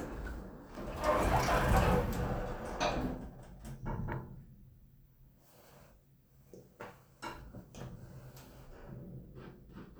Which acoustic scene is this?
elevator